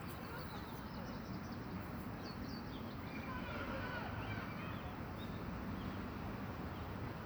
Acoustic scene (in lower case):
park